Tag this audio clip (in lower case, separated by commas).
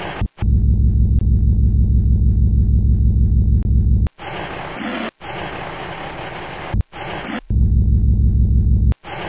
car